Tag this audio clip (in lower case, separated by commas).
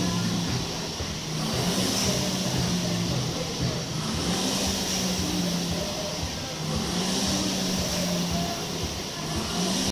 music